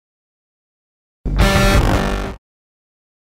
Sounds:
music, theme music

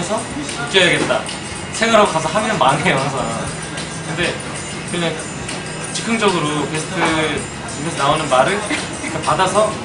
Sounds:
music, speech

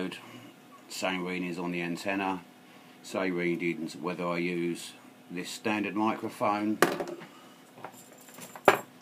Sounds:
speech

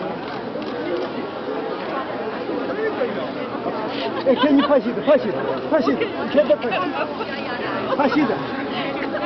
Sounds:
outside, urban or man-made, chatter, speech

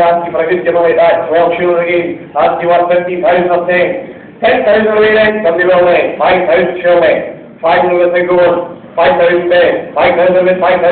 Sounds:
speech

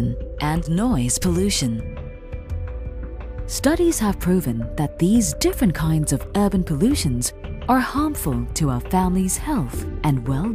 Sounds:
speech, music

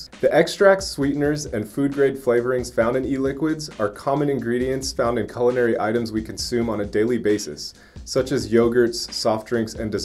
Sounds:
speech, music

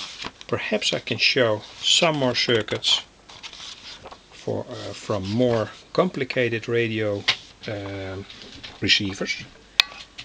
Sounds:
speech, inside a small room

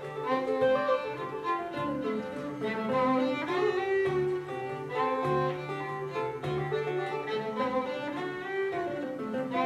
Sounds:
music, bowed string instrument, musical instrument, fiddle, string section, guitar

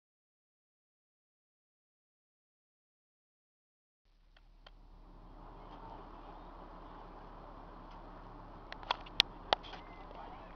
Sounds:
vehicle, car

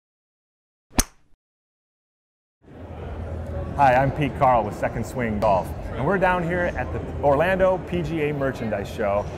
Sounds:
speech

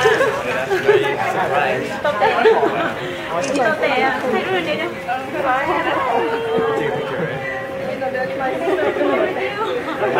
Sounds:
speech, chatter

